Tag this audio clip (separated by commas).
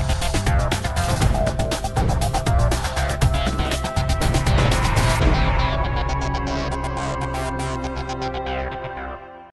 Music